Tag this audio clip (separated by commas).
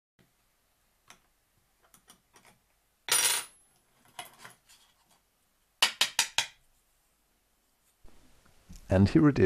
Speech